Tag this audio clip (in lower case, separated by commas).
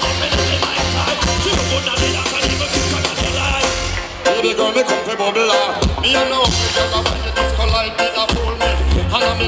music, jazz, rhythm and blues